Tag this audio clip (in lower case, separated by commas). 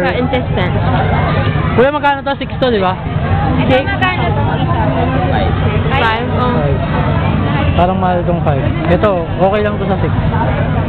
speech